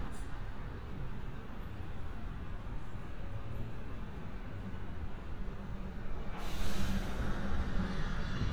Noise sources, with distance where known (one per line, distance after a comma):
engine of unclear size, near